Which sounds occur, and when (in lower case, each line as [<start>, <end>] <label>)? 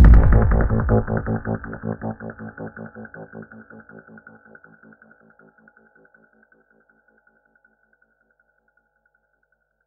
[0.00, 9.85] music